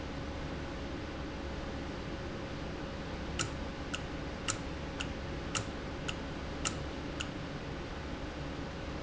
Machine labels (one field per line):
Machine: valve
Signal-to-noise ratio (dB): -6 dB